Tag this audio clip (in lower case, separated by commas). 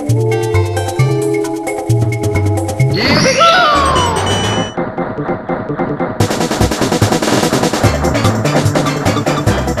speech, music